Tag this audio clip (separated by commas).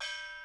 Gong, Percussion, Musical instrument, Music